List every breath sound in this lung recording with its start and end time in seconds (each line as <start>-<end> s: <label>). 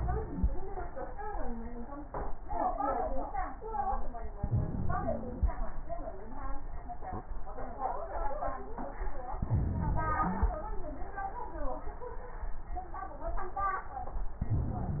4.43-5.53 s: inhalation
4.43-5.53 s: wheeze
9.44-10.54 s: inhalation
9.44-10.54 s: wheeze
14.42-15.00 s: inhalation
14.42-15.00 s: wheeze